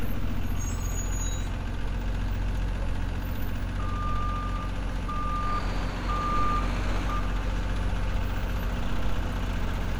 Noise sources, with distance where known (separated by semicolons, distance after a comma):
large-sounding engine, near; reverse beeper, near